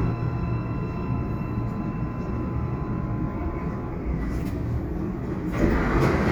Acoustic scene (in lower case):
subway train